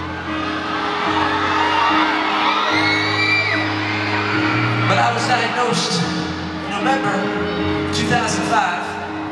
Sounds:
Male speech, Speech, Music

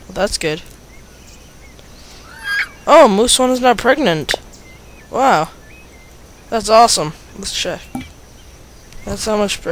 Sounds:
Speech

